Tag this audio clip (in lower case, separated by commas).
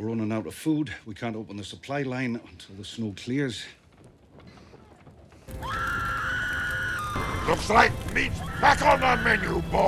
music, speech